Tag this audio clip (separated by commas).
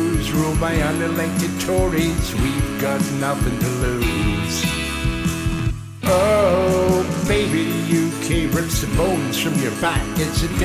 Bluegrass, Country, Music